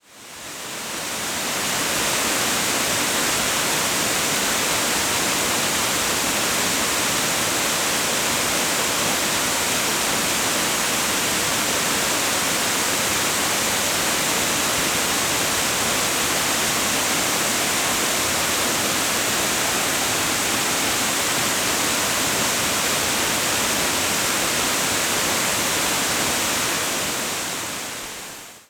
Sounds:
water

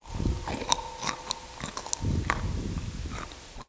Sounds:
mastication

